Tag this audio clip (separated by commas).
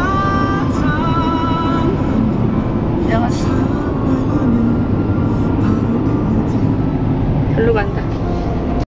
Vehicle, Truck, Music, Speech